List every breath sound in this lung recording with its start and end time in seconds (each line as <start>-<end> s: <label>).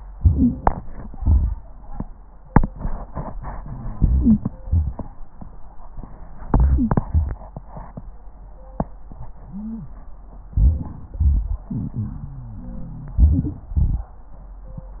0.17-1.14 s: inhalation
0.17-1.14 s: wheeze
1.19-2.05 s: exhalation
3.92-4.64 s: wheeze
3.94-4.64 s: inhalation
4.67-5.24 s: exhalation
4.67-5.24 s: crackles
6.47-7.01 s: inhalation
6.47-7.01 s: wheeze
7.02-7.55 s: exhalation
7.02-7.55 s: crackles
9.39-9.98 s: inhalation
9.39-9.98 s: wheeze
10.56-11.16 s: inhalation
11.18-11.75 s: exhalation
11.18-11.77 s: crackles
11.74-12.31 s: inhalation
12.32-13.19 s: exhalation
13.18-13.71 s: inhalation
13.18-13.71 s: wheeze
13.73-14.26 s: exhalation